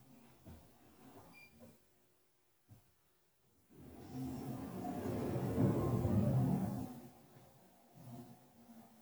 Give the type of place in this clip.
elevator